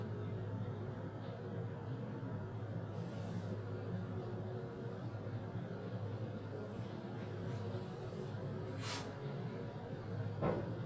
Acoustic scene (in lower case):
elevator